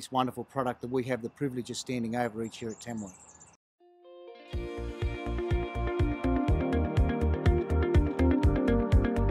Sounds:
speech, music

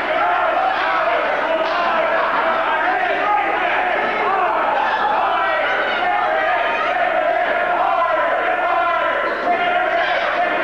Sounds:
speech

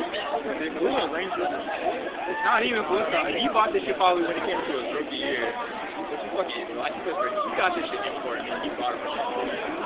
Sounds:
speech

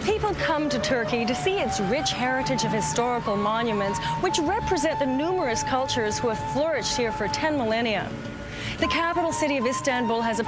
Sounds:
music, speech

